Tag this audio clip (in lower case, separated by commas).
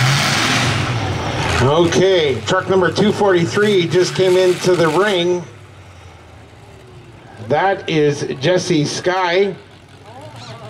speech, vehicle